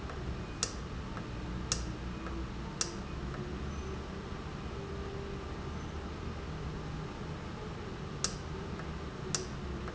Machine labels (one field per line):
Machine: valve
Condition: normal